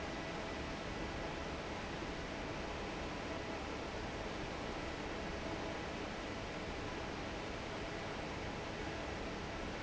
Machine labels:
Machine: fan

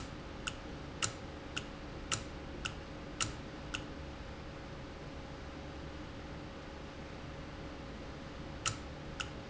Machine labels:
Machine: valve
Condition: normal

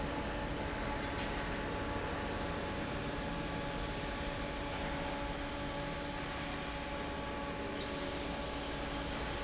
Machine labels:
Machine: fan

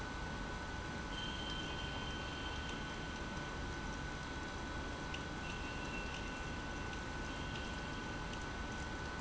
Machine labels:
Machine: pump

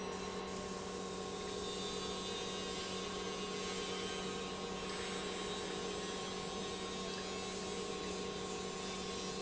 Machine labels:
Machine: pump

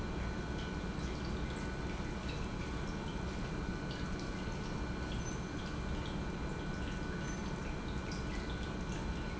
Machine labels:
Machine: pump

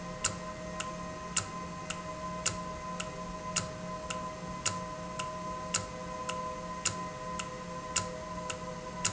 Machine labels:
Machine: valve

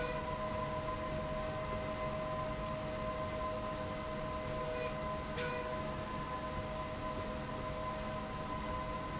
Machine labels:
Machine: slide rail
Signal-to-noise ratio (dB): -6 dB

